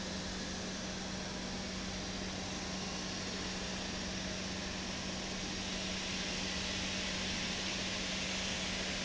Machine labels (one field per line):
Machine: pump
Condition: normal